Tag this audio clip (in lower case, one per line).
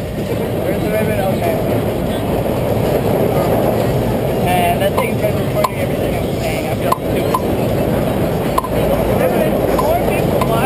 speech